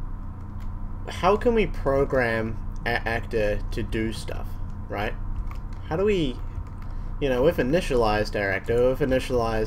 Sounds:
tick
speech

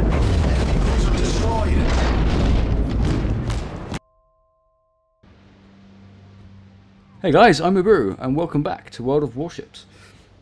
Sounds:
speech
boom

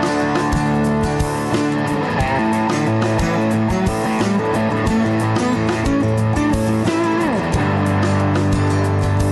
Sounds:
plucked string instrument
bass guitar
playing bass guitar
guitar
music
musical instrument

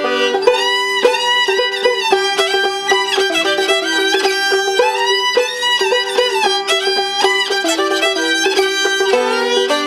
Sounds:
bowed string instrument
pizzicato
fiddle

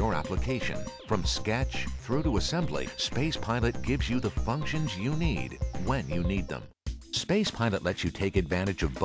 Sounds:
speech
music

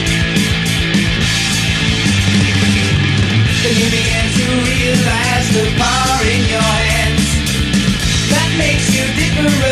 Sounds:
music

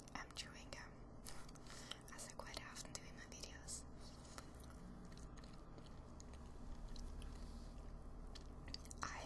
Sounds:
speech
chewing

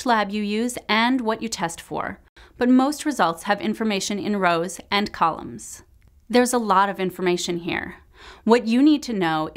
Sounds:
speech

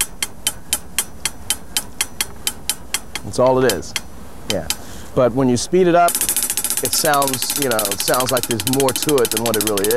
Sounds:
drum kit
music
drum
speech
musical instrument

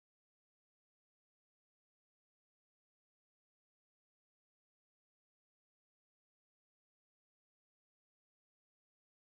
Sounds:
silence

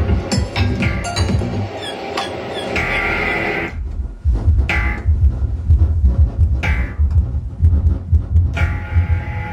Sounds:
music
techno
house music
electronic music

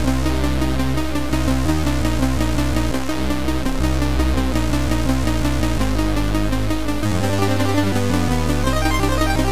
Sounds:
soundtrack music
music

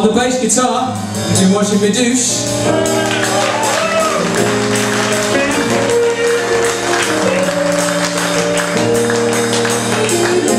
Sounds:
speech
music

